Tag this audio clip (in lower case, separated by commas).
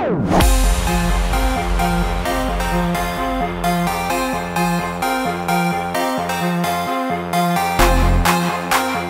music, speech